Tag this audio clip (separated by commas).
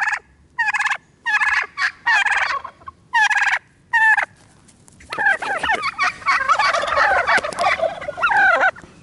turkey gobbling